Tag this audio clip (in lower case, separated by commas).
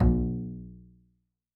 bowed string instrument, music, musical instrument